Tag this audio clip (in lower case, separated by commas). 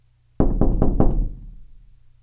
domestic sounds, knock, door